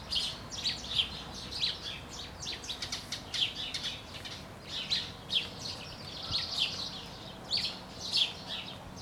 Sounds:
Bird, Animal, Wild animals

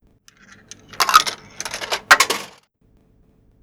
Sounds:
home sounds, Coin (dropping)

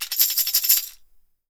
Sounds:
Percussion, Tambourine, Music, Musical instrument

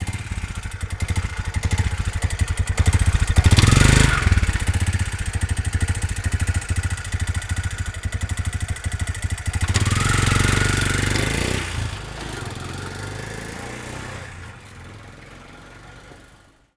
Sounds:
Vehicle, Motor vehicle (road)

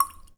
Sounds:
Water, Liquid, Raindrop, Drip, Rain

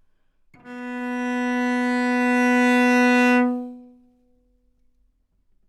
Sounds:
Musical instrument, Bowed string instrument, Music

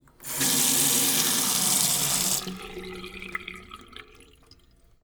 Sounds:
Sink (filling or washing), Domestic sounds, Water tap

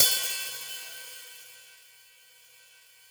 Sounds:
Cymbal, Percussion, Hi-hat, Music, Musical instrument

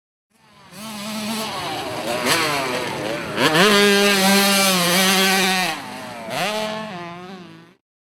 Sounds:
Motorcycle, Motor vehicle (road), Vehicle

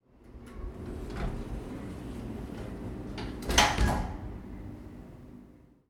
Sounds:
Door, home sounds, Sliding door, Slam

